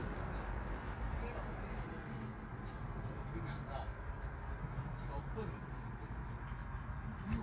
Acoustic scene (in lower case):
park